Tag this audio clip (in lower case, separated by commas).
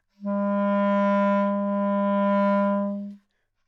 musical instrument, music, woodwind instrument